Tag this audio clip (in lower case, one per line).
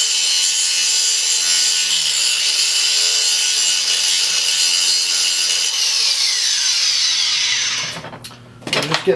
speech